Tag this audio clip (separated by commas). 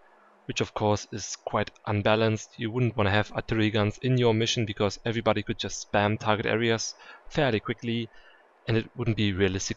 Speech